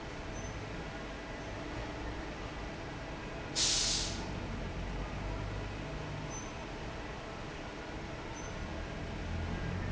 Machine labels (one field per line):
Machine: fan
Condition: normal